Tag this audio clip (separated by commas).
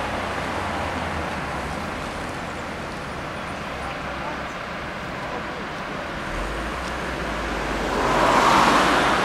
Speech